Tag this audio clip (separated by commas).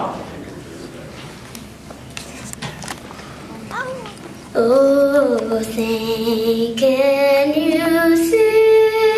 Child singing, Speech